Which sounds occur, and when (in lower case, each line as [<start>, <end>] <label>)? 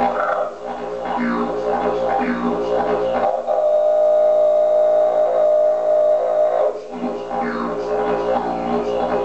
[0.01, 9.24] music